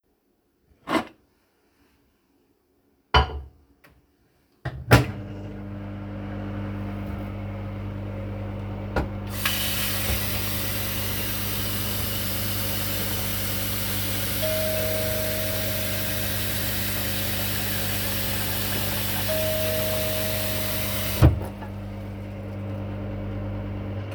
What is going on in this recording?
I open the microwave, put a plate inside, close the microwave and turn it on, while the microwave is running, I pick up the kettle, put it under the tap and open the water to start filling it up, a door bell rings twice, I close the tap, the microwave runs until the end of the recording.